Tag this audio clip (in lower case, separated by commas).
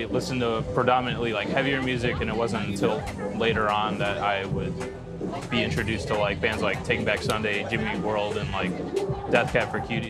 music, speech